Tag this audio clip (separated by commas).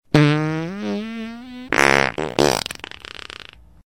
Fart